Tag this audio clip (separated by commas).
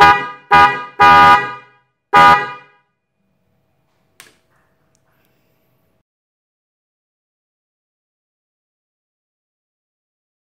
vehicle horn